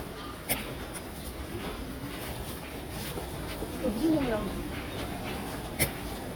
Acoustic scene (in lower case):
subway station